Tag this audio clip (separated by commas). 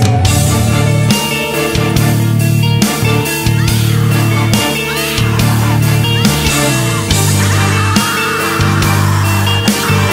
Music, Grunge